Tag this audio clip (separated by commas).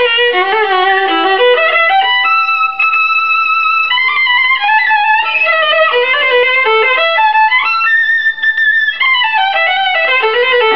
Bowed string instrument, fiddle